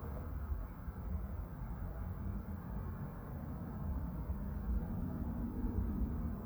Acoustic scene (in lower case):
park